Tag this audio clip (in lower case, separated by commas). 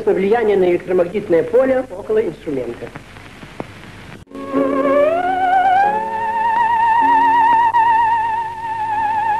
playing theremin